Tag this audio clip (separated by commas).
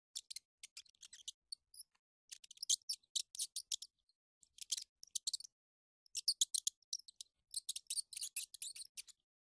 mouse squeaking